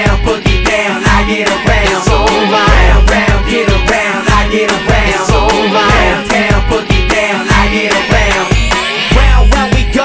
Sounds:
Music

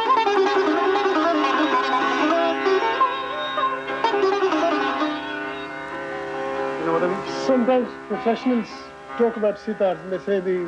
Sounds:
Sitar, Musical instrument, Speech, Music, Plucked string instrument

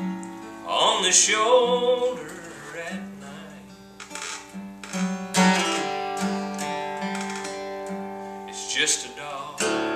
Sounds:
Musical instrument, Strum, Music, Guitar, Speech, Plucked string instrument

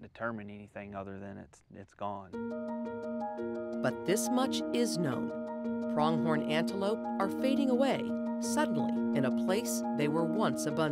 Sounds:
Music, Speech

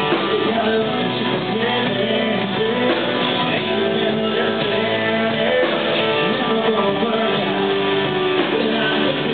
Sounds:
Music, Male singing

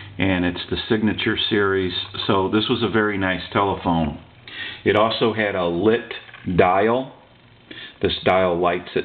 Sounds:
Speech

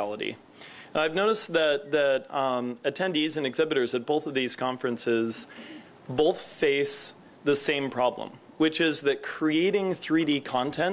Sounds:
Speech

